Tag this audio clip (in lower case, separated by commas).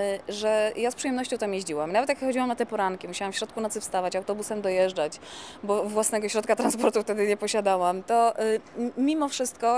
speech